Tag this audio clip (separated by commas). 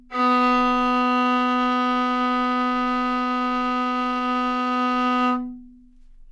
Musical instrument, Music, Bowed string instrument